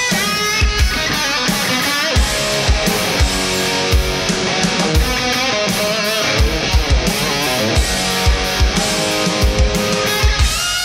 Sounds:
Drum kit, Snare drum, Rimshot, Drum, playing bass drum, Bass drum, Percussion

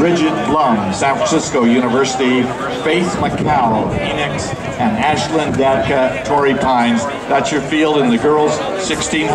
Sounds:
Speech, outside, urban or man-made, Run

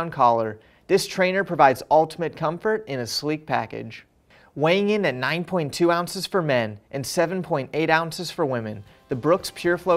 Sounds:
Speech, Music

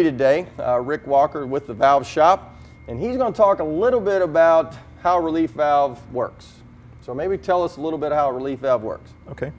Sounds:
Speech

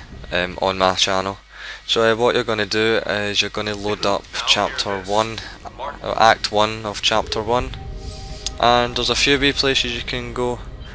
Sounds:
Music, Speech

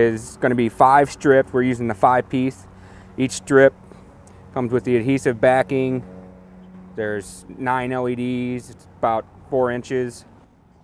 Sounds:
Speech

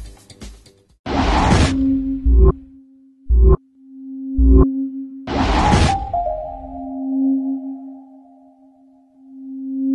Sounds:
Music

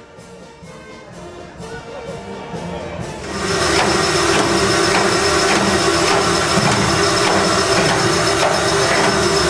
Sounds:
Music

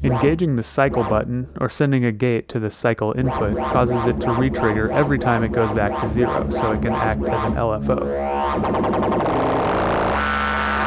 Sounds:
Music, Musical instrument, Speech, Synthesizer

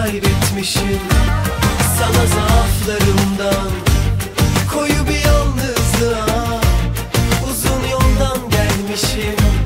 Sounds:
Music, Theme music

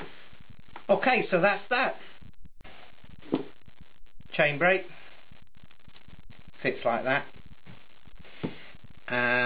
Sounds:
Speech, inside a small room

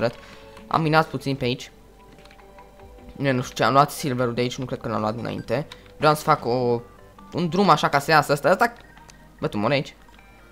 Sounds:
Speech

